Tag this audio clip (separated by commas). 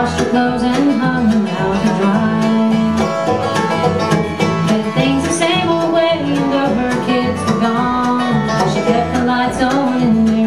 Music